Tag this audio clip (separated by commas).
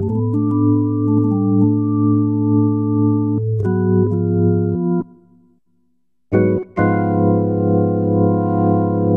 Hammond organ, Organ